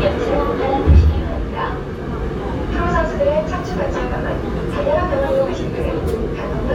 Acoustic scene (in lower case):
subway train